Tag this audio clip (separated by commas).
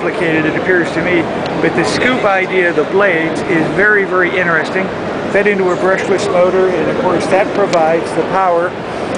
Speech